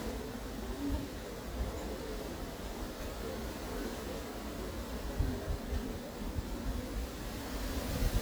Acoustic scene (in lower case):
park